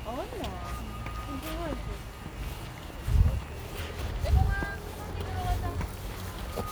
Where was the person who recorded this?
in a residential area